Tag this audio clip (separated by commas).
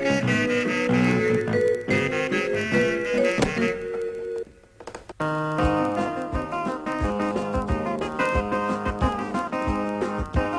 Music